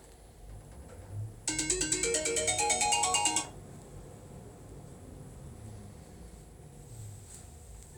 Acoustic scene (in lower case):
elevator